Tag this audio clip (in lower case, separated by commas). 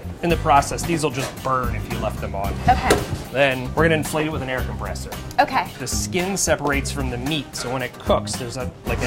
speech, music